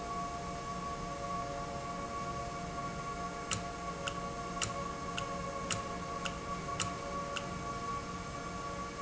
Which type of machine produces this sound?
valve